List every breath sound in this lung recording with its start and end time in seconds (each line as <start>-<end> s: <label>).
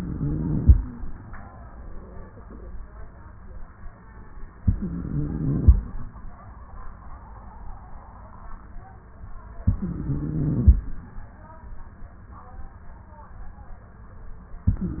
0.00-0.76 s: inhalation
4.62-5.72 s: inhalation
9.69-10.79 s: inhalation
14.71-15.00 s: inhalation